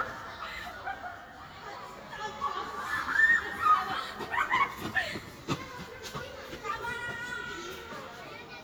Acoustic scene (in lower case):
park